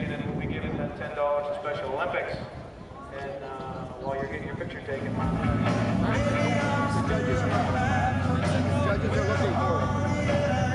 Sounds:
music, vehicle, car, speech

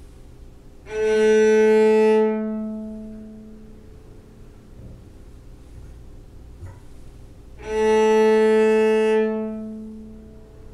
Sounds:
music, cello, bowed string instrument, musical instrument, fiddle

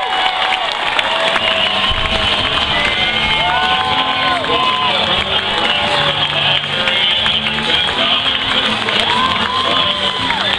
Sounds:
speech

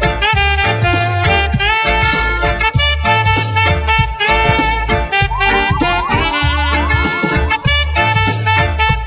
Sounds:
music, funk

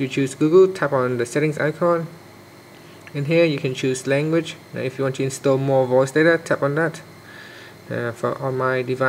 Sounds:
speech

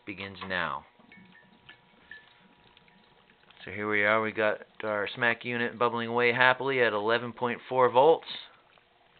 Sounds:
speech

